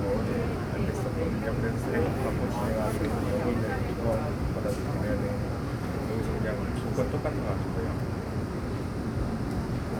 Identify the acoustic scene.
subway train